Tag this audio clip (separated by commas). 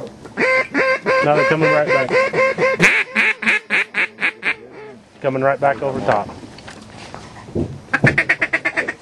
Speech, Duck, duck quacking, Quack